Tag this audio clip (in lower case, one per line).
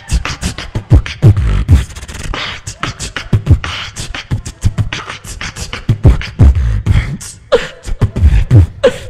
beat boxing